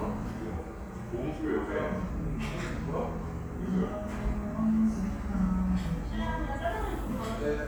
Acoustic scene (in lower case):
restaurant